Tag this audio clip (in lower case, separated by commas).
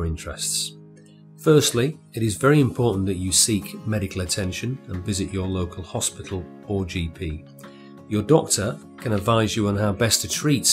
music, speech